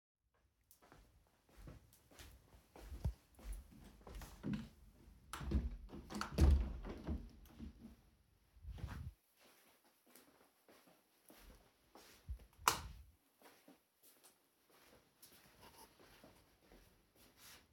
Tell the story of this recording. I walk to the window and open it. Then I walk around and turn off the light while walking past the switch